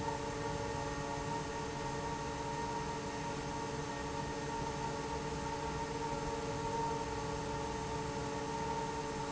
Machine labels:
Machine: fan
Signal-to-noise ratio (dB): -6 dB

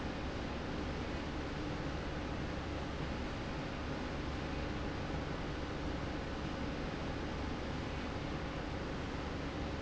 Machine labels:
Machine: slide rail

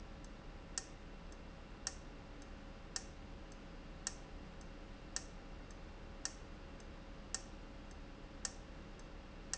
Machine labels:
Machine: valve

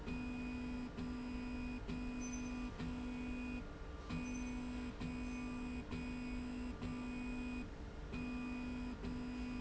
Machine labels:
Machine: slide rail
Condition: normal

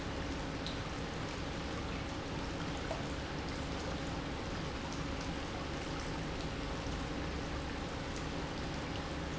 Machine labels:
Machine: pump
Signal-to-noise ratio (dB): -6 dB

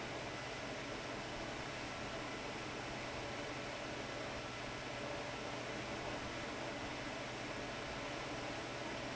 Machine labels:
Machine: fan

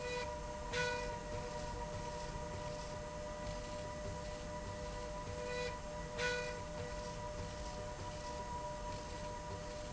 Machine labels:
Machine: slide rail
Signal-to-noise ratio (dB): 0 dB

